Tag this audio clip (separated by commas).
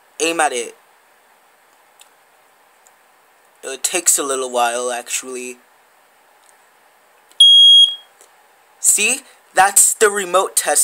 Speech